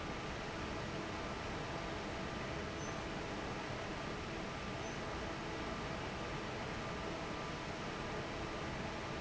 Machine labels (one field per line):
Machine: fan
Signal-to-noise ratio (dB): 0 dB